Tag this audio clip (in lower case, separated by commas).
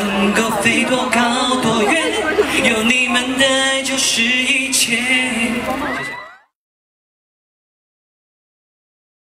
male singing